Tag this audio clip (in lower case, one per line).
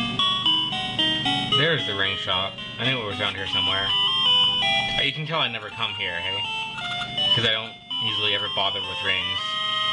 music
speech
inside a small room